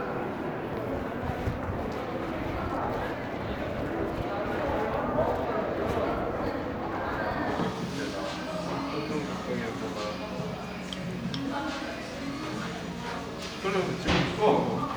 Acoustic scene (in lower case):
crowded indoor space